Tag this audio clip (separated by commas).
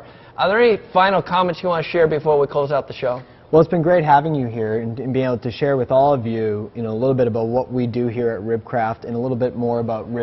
Speech